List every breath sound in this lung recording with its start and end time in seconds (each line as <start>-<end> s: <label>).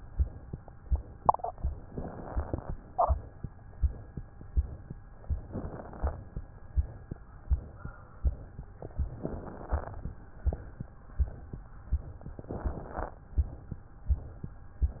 1.86-2.77 s: inhalation
1.86-2.77 s: crackles
5.48-6.40 s: inhalation
5.48-6.40 s: crackles
9.16-10.08 s: inhalation
9.16-10.08 s: crackles
12.39-13.24 s: inhalation
12.39-13.24 s: crackles